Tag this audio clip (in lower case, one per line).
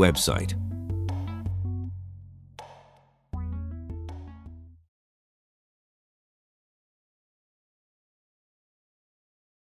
speech